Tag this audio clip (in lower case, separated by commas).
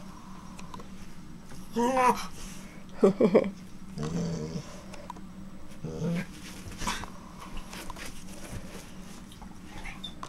domestic animals, animal, dog